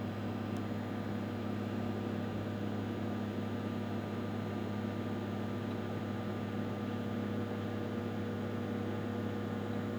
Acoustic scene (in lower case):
kitchen